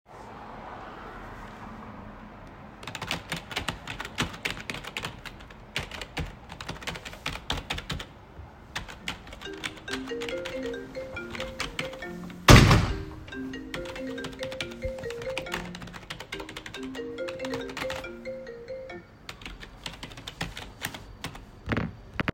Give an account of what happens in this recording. You can hear the traffic. Meanwhile, I'm sitting at my computer typing on the keyboard. After my phone started ringing, I closed the window.